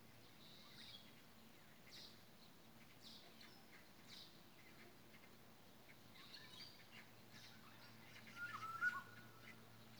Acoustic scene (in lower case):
park